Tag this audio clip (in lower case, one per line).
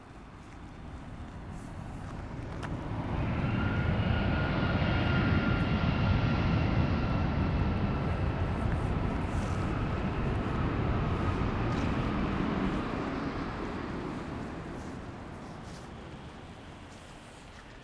fixed-wing aircraft
aircraft
vehicle